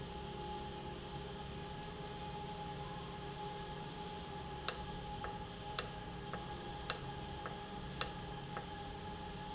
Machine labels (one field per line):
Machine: valve